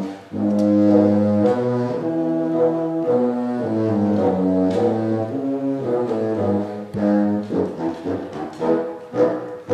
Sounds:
playing bassoon

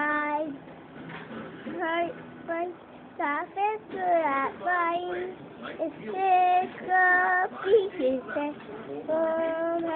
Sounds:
Music, Speech, Female singing, Child singing

